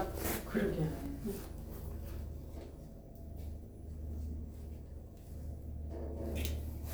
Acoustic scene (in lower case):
elevator